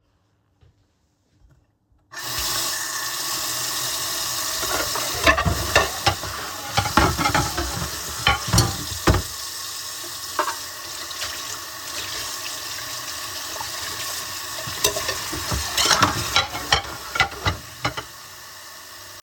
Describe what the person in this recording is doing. I was standing at the sink doing dishes in the kitchen. Running water was audible while I handled the dishes and cutlery. The recording captures a short dishwashing activity.